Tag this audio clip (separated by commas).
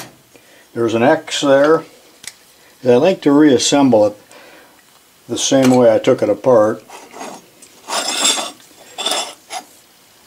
Speech, inside a small room